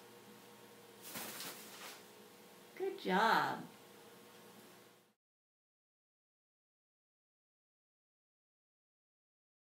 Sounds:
Speech

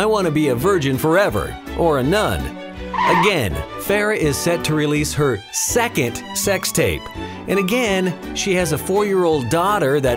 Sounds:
Music, Speech

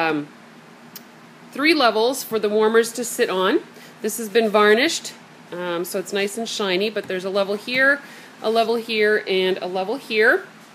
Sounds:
Speech

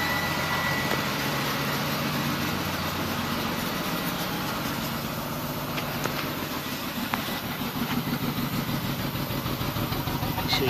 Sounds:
Vehicle, Car, Engine, Medium engine (mid frequency), Idling

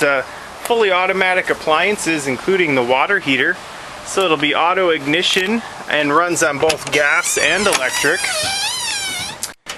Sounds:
outside, urban or man-made, Speech, Vehicle

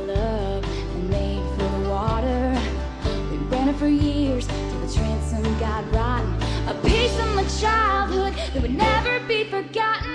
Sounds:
Music

